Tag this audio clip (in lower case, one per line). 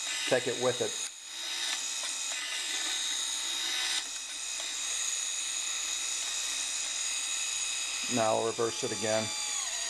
ratchet
mechanisms